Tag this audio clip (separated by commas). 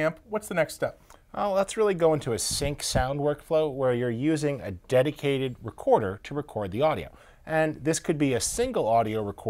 Speech